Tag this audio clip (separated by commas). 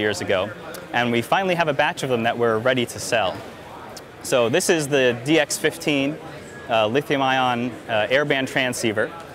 Speech